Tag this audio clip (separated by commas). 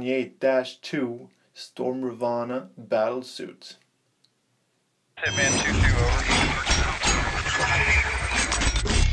inside a small room, Music, Speech